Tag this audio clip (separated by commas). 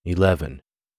Human voice, Speech